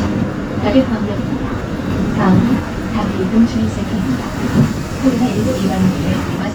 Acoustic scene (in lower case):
bus